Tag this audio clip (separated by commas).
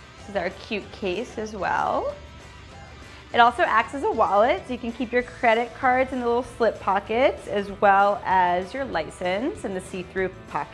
Speech, Music